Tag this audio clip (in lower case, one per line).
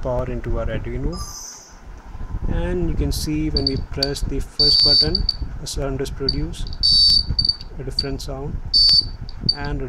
buzzer
speech